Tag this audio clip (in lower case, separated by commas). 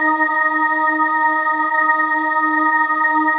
musical instrument, music, organ, keyboard (musical)